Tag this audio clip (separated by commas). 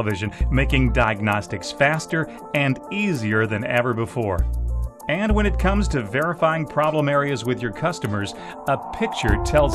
Speech, Music